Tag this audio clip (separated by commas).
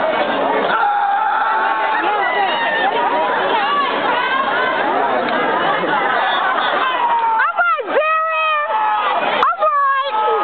Speech